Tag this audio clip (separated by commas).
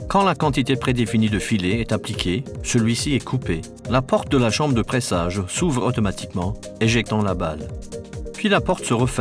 Music, Speech